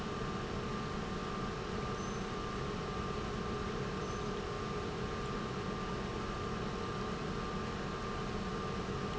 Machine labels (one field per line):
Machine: pump